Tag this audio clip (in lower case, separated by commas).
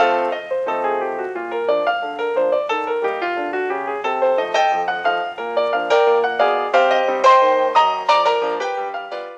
keyboard (musical), piano